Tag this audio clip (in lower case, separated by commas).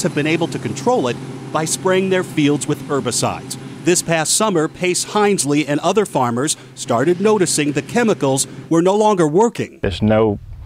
speech